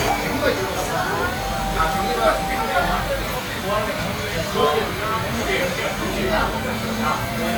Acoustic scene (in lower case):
crowded indoor space